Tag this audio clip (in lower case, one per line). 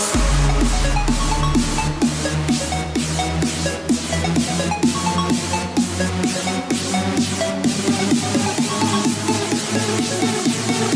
music
dance music